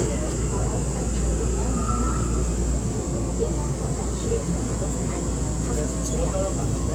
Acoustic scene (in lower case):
subway train